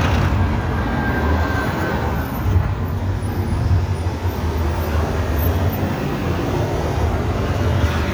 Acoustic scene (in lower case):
street